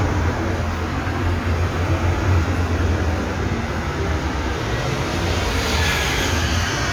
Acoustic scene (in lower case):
street